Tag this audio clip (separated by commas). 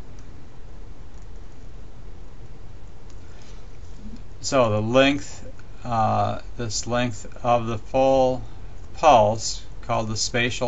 Speech